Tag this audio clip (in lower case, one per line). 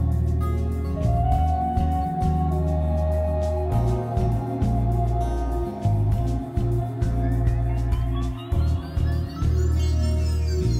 music